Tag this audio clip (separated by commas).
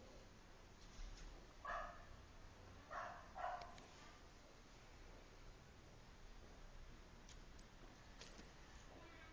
Domestic animals, Dog, Animal